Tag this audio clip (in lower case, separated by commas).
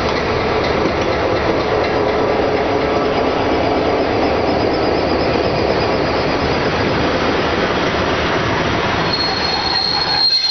clatter